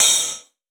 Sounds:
Hi-hat, Percussion, Music, Cymbal, Musical instrument

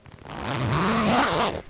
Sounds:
Domestic sounds, Zipper (clothing)

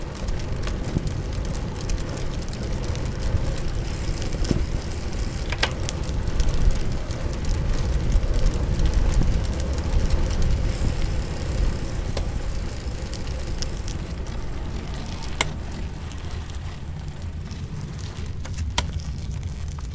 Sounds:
Bicycle, Vehicle

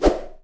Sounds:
Whoosh

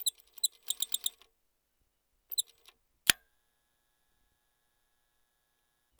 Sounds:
Mechanisms

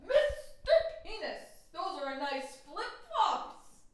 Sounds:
Human voice, Speech, woman speaking, Yell, Shout

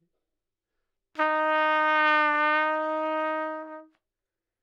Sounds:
Brass instrument, Musical instrument, Music, Trumpet

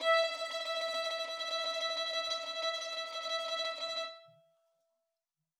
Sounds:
Musical instrument, Music, Bowed string instrument

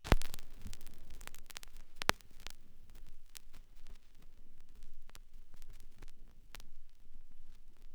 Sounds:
Crackle

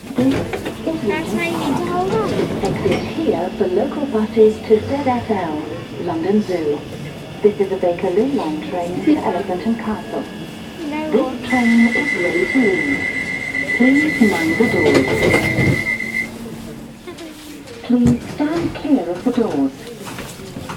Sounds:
underground, Rail transport, Vehicle

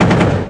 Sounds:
Gunshot, Explosion

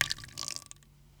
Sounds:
Sink (filling or washing), home sounds

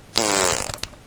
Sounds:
Fart

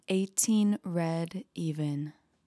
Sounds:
Female speech, Human voice, Speech

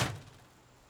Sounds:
Door, Slam, Domestic sounds

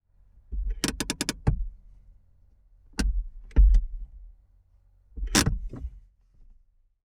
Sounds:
Motor vehicle (road), Vehicle, Car

